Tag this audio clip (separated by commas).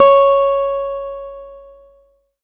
Musical instrument, Acoustic guitar, Guitar, Music, Plucked string instrument